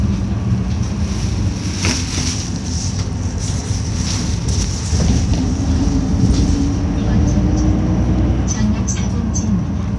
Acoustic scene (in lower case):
bus